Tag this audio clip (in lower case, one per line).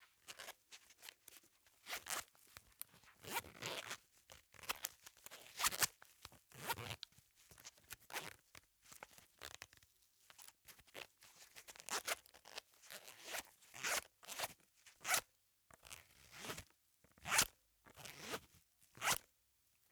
domestic sounds
zipper (clothing)